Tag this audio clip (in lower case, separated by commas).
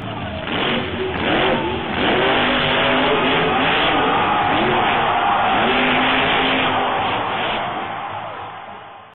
vehicle, speech